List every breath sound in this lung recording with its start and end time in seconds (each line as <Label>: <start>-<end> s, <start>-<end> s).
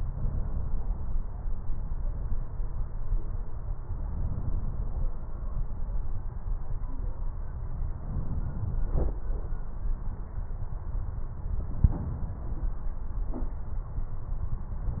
Inhalation: 7.93-8.85 s